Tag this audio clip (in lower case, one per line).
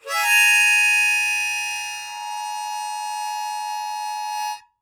music
musical instrument
harmonica